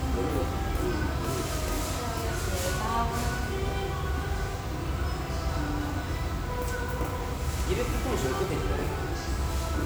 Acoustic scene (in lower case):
restaurant